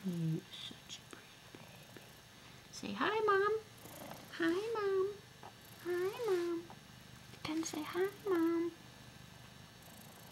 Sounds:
speech, purr

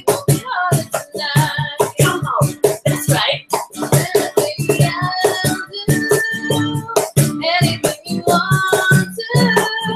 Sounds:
female singing, music

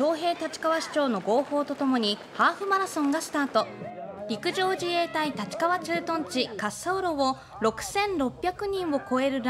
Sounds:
speech, run, outside, urban or man-made

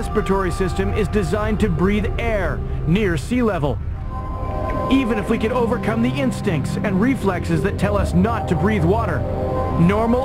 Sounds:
music, speech

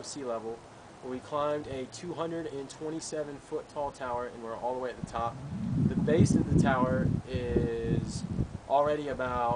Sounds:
speech

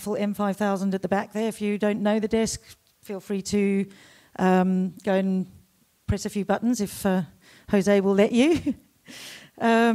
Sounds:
speech

